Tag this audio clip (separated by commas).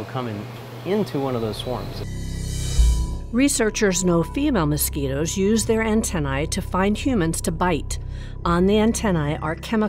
Speech, Music